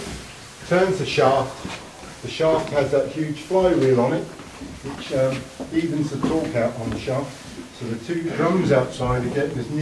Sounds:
speech

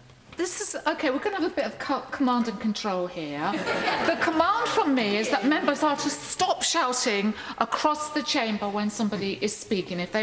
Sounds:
speech

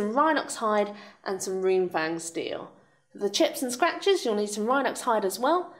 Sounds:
speech

